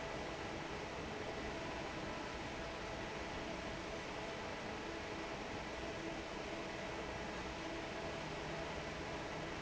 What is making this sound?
fan